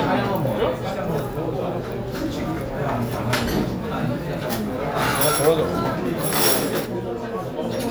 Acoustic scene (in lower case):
restaurant